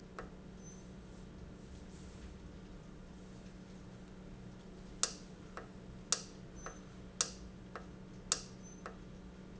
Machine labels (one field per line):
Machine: valve